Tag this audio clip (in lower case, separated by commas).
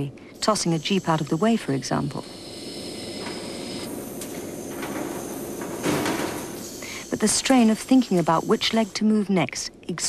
speech